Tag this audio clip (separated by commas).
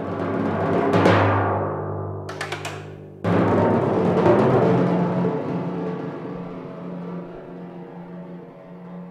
playing tympani